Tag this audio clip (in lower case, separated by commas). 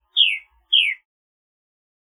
animal, bird, wild animals